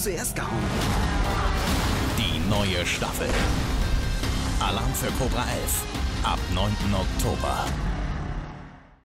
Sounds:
Speech, Music

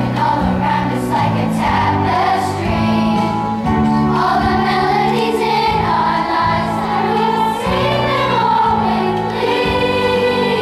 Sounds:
Music

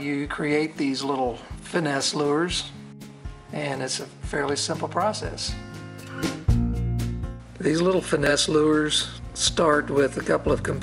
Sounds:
Music, Speech

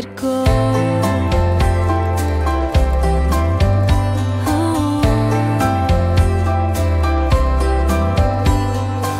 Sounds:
Music

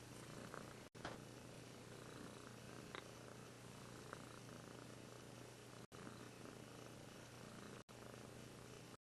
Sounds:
Purr

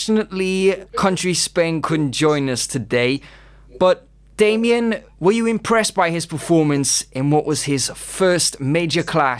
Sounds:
Speech

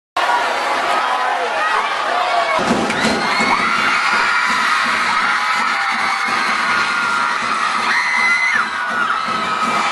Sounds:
Children shouting, Cheering, Crowd

